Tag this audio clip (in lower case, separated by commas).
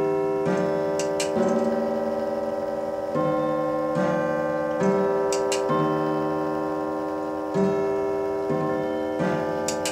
tick-tock